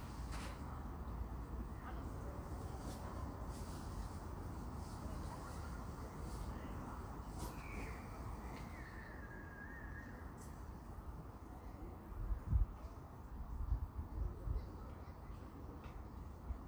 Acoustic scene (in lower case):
park